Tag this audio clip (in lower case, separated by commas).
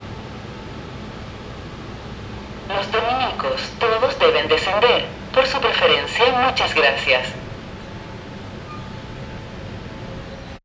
metro, vehicle, rail transport